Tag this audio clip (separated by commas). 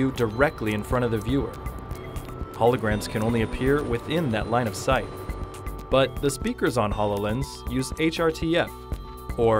Music, Speech